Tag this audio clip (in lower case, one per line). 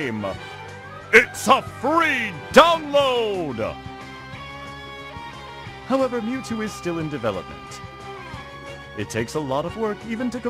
speech
music